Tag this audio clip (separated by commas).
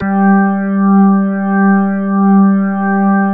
Keyboard (musical), Music, Organ, Musical instrument